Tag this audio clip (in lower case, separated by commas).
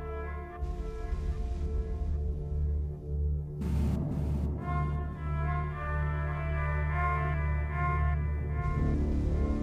music